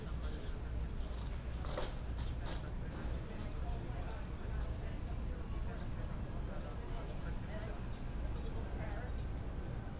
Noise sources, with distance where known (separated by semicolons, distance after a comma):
person or small group talking